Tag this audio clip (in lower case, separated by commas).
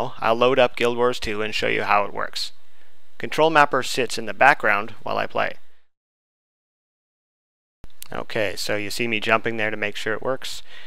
speech